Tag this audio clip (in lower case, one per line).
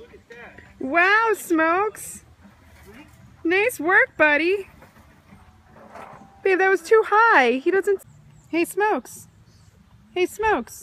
speech